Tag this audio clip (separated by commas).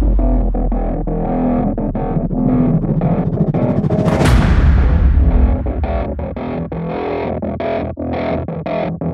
Music, Soundtrack music